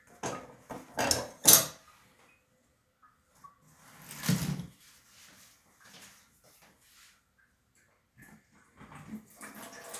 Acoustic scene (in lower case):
restroom